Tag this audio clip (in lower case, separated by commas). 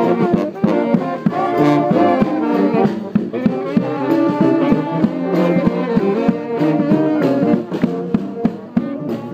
trombone, trumpet, playing trombone, music